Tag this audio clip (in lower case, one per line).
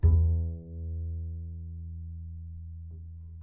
music
musical instrument
bowed string instrument